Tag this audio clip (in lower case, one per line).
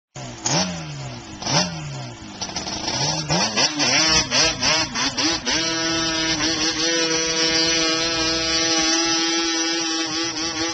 motorcycle
vehicle